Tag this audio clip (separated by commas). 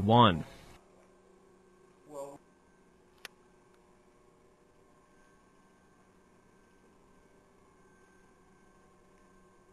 Speech